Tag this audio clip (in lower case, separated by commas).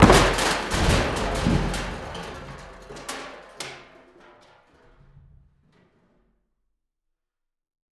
crushing